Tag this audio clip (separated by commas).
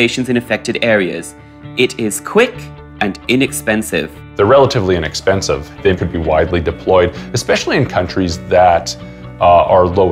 Music, Speech